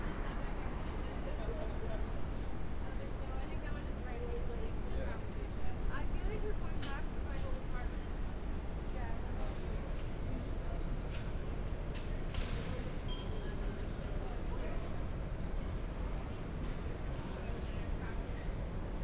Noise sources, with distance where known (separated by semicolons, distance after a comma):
person or small group talking